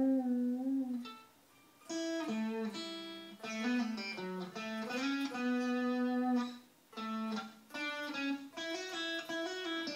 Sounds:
musical instrument, plucked string instrument, tapping (guitar technique), music, guitar

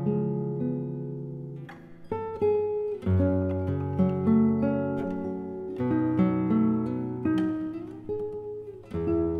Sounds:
guitar, music, plucked string instrument, musical instrument, acoustic guitar

